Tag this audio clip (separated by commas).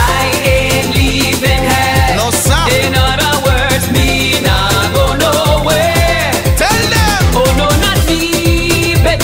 Music